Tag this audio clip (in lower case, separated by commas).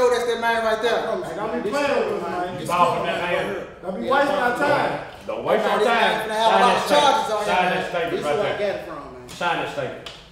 speech